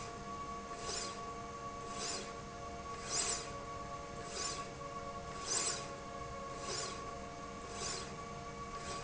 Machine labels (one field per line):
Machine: slide rail